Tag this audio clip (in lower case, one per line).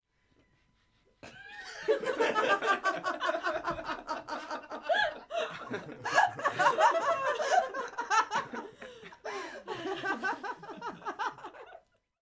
human voice
laughter